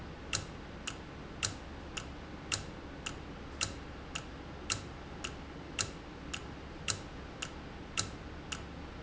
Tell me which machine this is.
valve